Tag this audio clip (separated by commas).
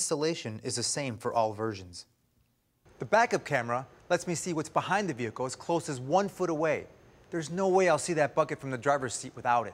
Speech